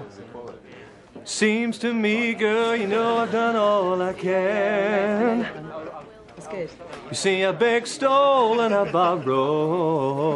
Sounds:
speech

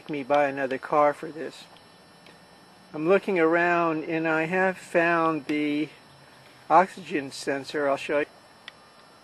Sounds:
speech

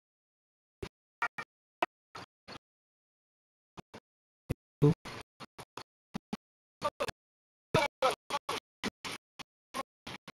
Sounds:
yip, bow-wow, dog, speech, pets, animal

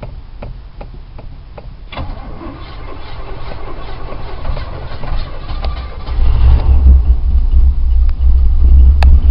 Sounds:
car, vehicle

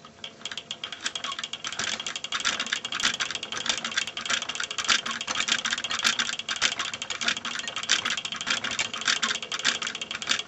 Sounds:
inside a small room

